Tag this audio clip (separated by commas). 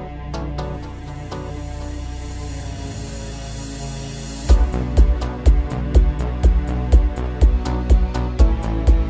Music